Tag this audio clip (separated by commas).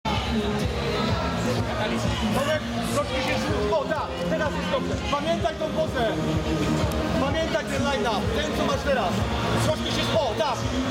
Music, inside a public space, Speech